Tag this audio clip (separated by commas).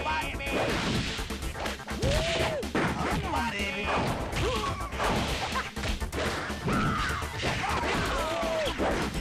Music